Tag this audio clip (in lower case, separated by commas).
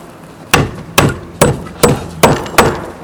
tools, hammer